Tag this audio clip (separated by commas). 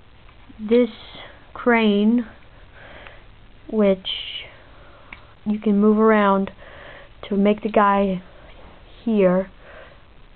Speech